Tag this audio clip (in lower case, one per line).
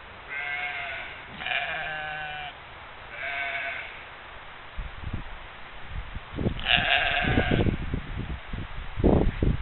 sheep
bleat
sheep bleating